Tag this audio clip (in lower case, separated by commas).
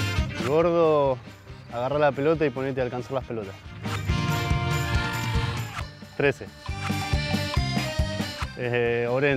speech, music